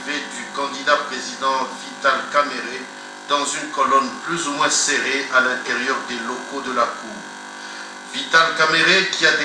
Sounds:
Speech

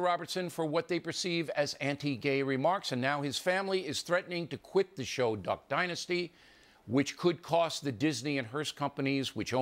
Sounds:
Narration, Male speech, Speech

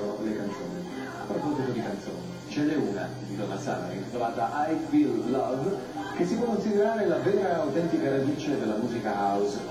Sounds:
Speech, Music

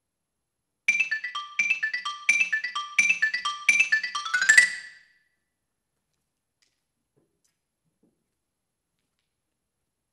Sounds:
playing glockenspiel

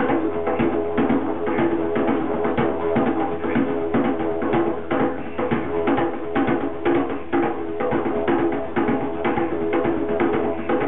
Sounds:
Didgeridoo, Music

